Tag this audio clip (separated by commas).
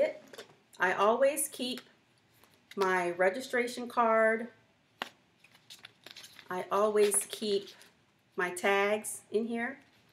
Speech